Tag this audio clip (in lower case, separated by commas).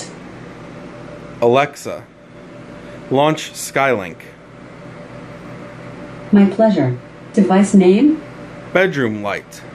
speech